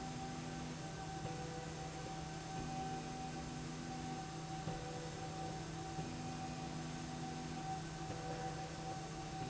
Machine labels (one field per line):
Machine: slide rail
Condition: normal